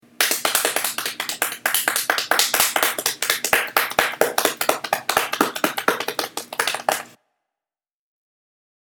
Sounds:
clapping
hands

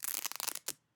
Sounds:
domestic sounds

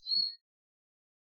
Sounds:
bird
wild animals
bird call
tweet
animal

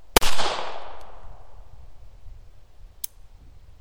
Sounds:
explosion
gunshot

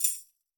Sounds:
musical instrument
percussion
tambourine
music

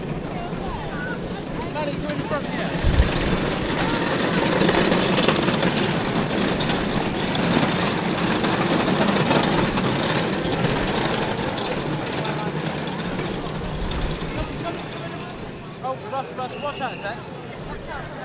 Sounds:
human group actions
crowd

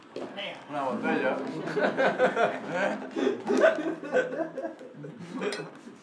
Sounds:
laughter
human voice

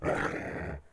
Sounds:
pets
dog
animal

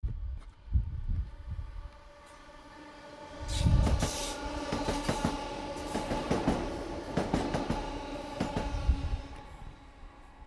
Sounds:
train
vehicle
rail transport

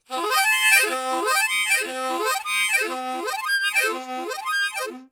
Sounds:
musical instrument
harmonica
music

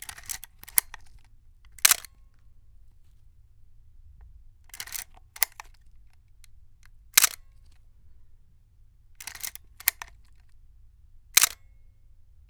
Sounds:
mechanisms
camera

